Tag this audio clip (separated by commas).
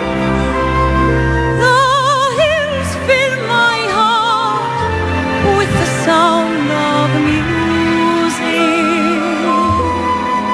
Traditional music, Music, Tender music, Independent music